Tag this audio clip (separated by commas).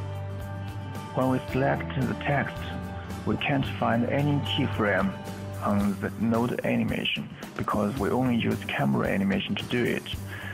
Music, Speech